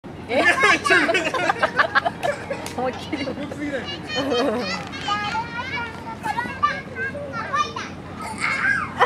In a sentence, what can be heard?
Couple laughing with child